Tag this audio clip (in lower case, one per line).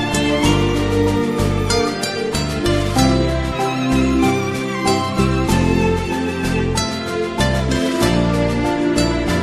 music